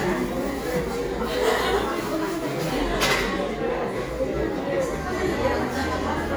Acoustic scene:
cafe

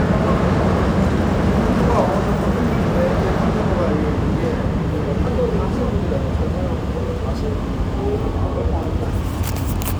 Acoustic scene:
subway station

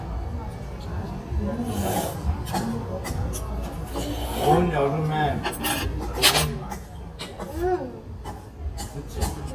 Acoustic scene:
restaurant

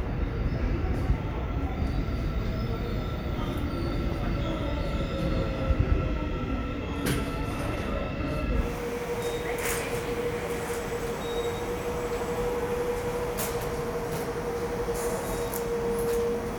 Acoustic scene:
subway station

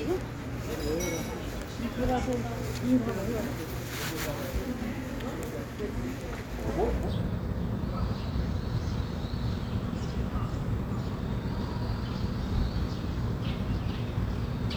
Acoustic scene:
residential area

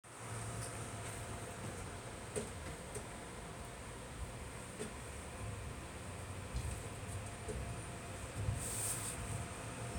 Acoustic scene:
subway train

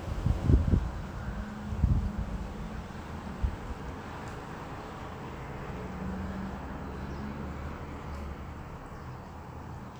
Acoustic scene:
residential area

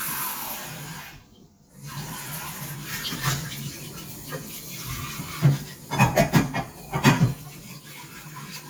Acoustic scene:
kitchen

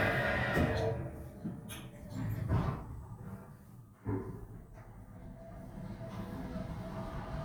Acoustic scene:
elevator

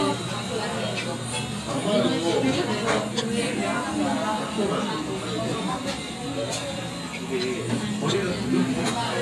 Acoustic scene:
crowded indoor space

